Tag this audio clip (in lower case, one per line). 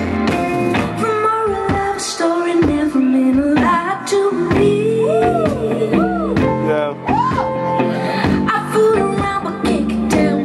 music
speech